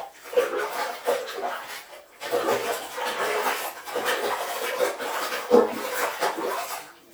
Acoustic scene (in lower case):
restroom